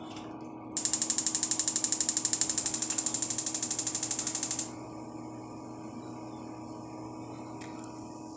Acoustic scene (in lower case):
kitchen